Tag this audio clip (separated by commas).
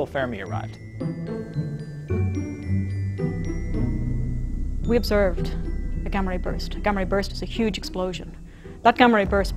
Speech, Music